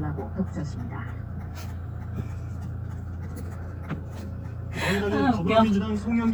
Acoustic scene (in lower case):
car